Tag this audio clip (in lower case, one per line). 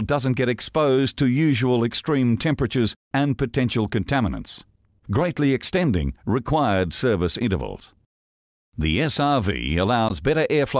speech